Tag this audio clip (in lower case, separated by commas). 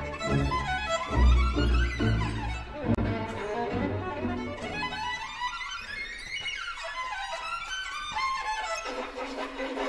bowed string instrument, music